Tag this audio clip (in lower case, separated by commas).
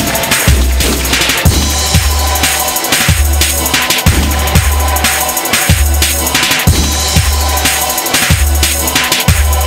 music